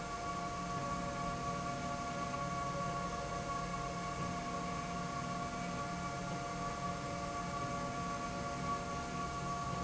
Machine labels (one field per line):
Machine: slide rail